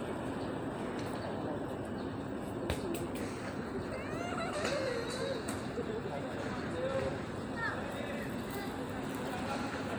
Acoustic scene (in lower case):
park